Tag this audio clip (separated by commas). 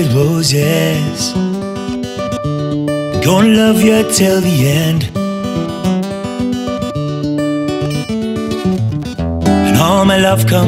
Music, New-age music, Blues